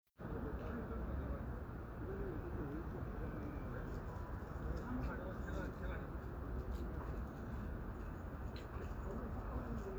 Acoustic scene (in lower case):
residential area